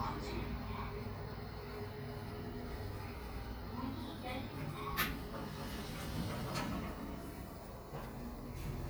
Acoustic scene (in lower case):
elevator